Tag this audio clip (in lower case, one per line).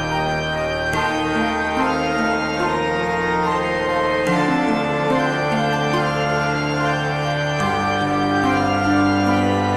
theme music
music